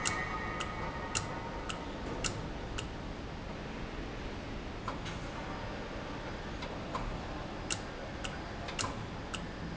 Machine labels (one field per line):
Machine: valve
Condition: normal